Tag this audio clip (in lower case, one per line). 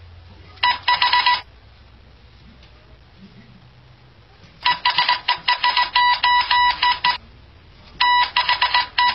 inside a small room